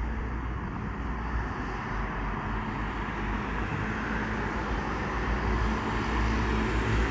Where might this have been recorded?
on a street